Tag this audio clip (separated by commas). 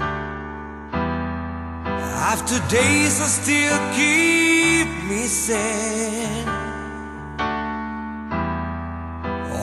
Music